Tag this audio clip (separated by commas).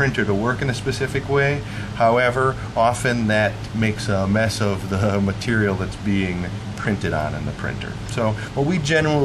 Speech